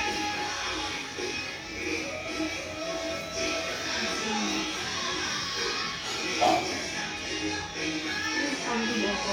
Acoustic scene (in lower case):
restaurant